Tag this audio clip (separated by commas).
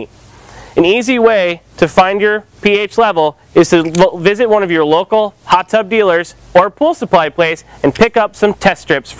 Speech